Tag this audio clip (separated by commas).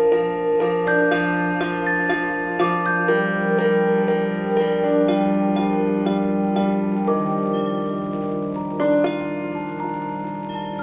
Music, Vibraphone